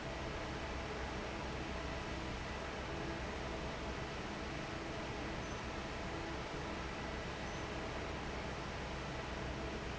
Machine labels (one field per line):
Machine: fan